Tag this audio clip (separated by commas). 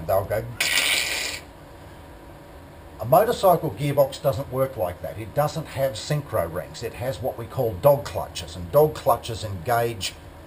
Speech